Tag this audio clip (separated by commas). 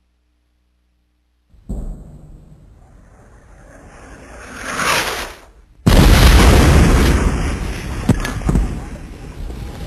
gunfire, Artillery fire